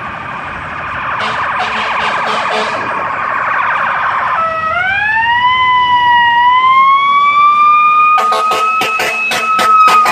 A firetruck going down the street and blowing its horn